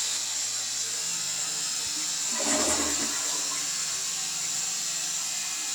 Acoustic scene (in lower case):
restroom